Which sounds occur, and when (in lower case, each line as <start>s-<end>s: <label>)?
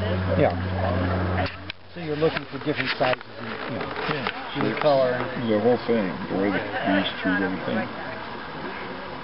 0.0s-0.5s: male speech
0.0s-9.2s: conversation
0.0s-9.2s: wind
0.4s-0.5s: tick
0.7s-1.7s: male speech
1.4s-1.7s: human sounds
1.6s-1.7s: tick
1.9s-3.1s: male speech
2.3s-2.4s: tick
3.1s-3.1s: tick
3.3s-3.9s: male speech
3.4s-4.1s: generic impact sounds
4.0s-9.2s: male speech
4.2s-4.3s: tick
4.6s-4.6s: tick
4.8s-4.8s: tick